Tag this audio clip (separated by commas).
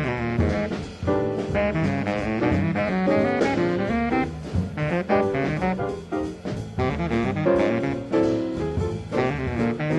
Music